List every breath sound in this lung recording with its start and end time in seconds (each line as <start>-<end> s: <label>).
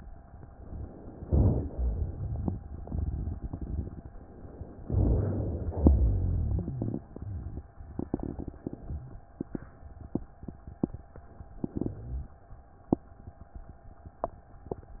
4.84-5.83 s: inhalation
4.84-5.83 s: rhonchi
5.88-6.98 s: exhalation
5.88-6.98 s: rhonchi